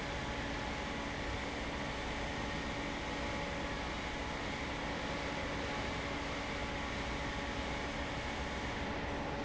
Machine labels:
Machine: fan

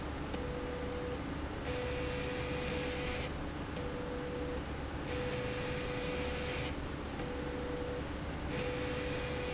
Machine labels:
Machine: slide rail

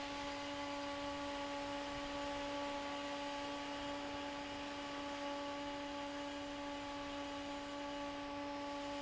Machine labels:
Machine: fan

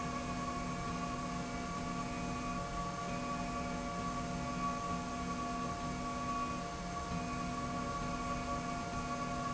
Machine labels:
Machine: slide rail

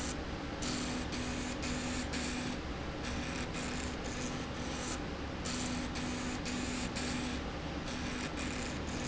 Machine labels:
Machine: slide rail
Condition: abnormal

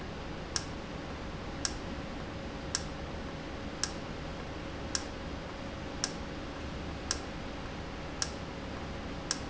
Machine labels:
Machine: valve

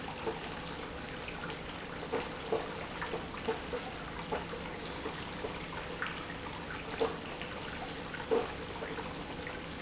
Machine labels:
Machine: pump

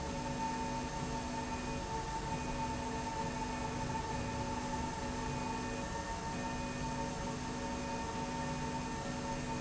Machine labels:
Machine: slide rail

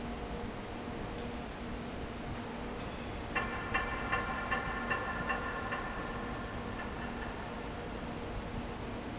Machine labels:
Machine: fan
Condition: abnormal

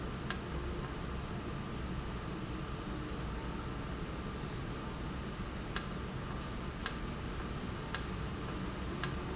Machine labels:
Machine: valve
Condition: normal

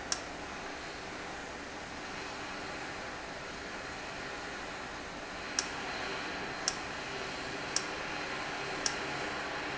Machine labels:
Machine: valve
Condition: normal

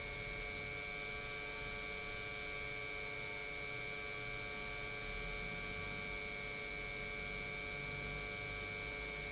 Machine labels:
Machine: pump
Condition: normal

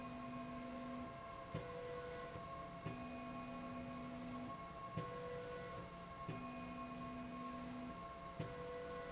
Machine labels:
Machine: slide rail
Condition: normal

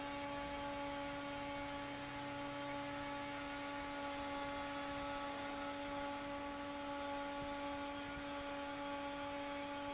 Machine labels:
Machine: fan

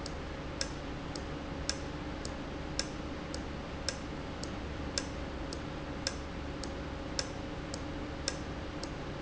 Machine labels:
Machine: valve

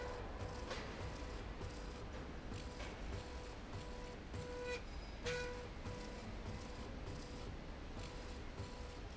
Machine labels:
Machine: slide rail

